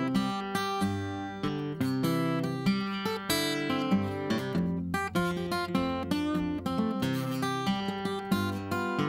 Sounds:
Music

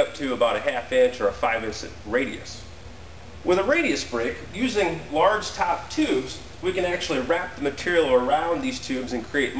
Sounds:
Speech

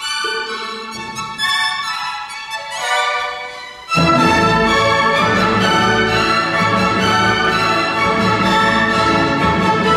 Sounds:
fiddle, Music, Musical instrument

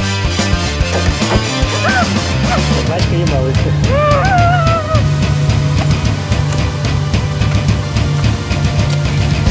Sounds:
Speech, Music

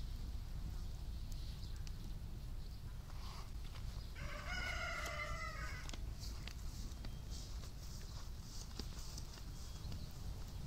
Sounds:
livestock

